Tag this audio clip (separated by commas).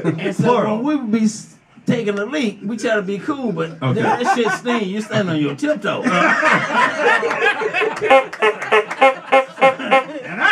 Speech